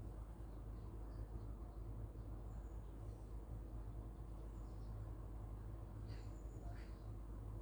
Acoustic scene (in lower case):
park